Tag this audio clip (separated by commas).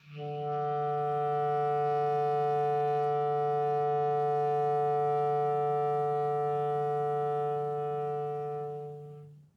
Music, Musical instrument, Wind instrument